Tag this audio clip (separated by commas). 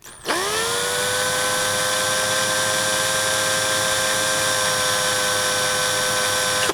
Tools